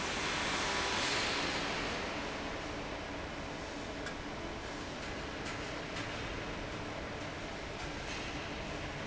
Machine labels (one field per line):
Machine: fan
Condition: abnormal